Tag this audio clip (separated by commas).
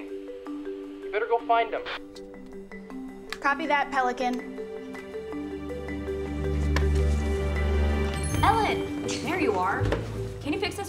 Speech, Music